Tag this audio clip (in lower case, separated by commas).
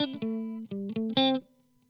plucked string instrument, guitar, musical instrument, music, electric guitar